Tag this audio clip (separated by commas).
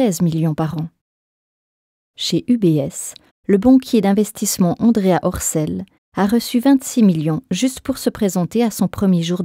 Speech